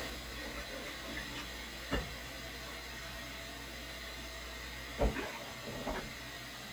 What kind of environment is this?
kitchen